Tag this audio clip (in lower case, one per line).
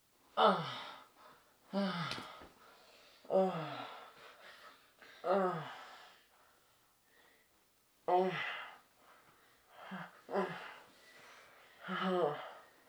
human voice